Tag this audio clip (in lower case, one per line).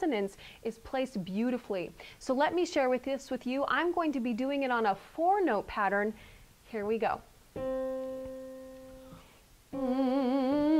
speech